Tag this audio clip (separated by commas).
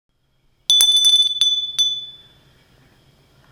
Glass, Bell